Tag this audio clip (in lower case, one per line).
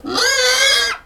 livestock
animal